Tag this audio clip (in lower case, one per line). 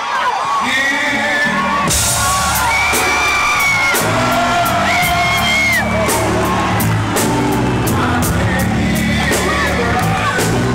speech
music
blues